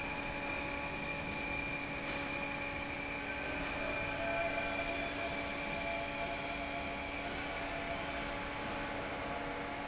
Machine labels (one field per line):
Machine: fan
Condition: normal